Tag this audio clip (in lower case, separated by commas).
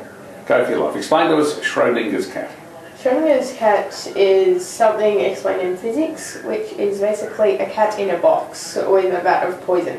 speech